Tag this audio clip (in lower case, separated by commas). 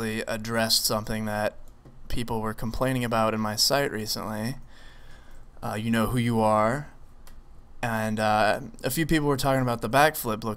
speech